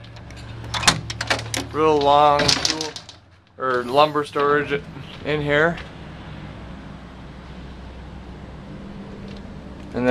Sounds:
Speech, Truck, Vehicle

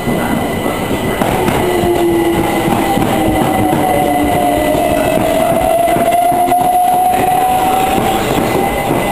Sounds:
train wagon, Train, Vehicle, outside, urban or man-made

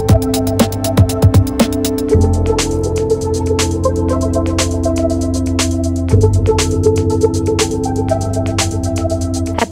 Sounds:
Music, Speech

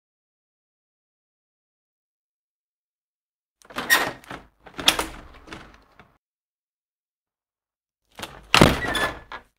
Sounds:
opening or closing car doors

